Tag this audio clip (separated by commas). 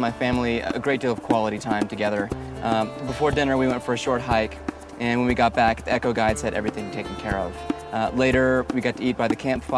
Music, Speech